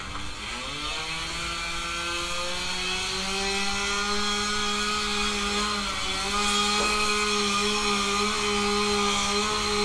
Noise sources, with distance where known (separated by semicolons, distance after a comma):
unidentified powered saw, near